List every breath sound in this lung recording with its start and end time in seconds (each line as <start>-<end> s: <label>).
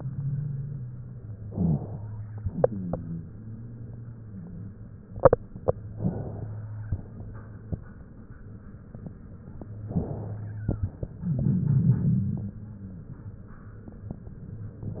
1.34-2.40 s: inhalation